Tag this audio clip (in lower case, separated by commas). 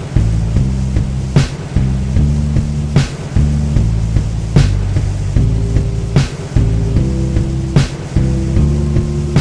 music